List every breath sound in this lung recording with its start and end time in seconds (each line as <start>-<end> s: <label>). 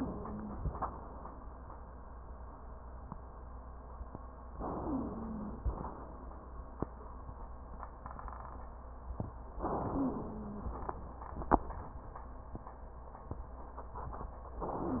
0.00-0.67 s: wheeze
4.57-5.60 s: inhalation
4.82-5.60 s: wheeze
5.60-6.32 s: exhalation
9.58-10.70 s: inhalation
9.96-10.74 s: wheeze
10.70-11.48 s: exhalation